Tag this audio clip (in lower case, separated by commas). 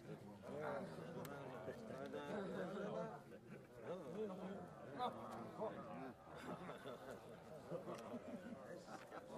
speech, crowd